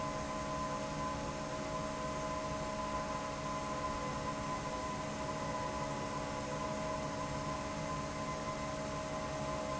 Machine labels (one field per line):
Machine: fan